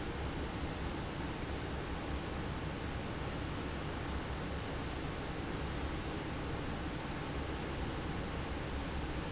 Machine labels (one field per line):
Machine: fan